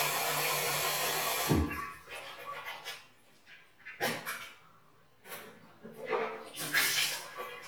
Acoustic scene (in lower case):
restroom